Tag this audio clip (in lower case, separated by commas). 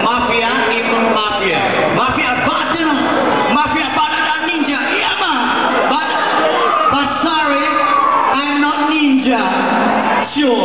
speech